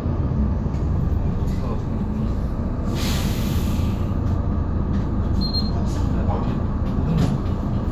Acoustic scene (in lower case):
bus